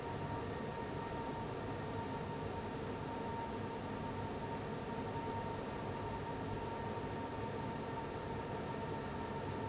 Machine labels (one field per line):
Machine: fan